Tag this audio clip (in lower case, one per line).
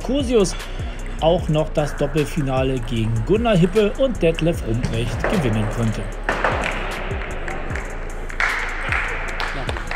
playing table tennis